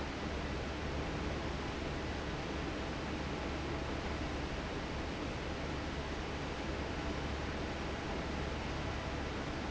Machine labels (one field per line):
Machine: fan